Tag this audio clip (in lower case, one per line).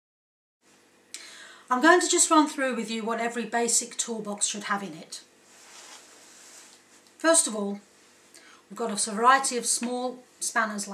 speech